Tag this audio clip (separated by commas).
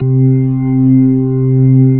Musical instrument, Keyboard (musical), Music, Organ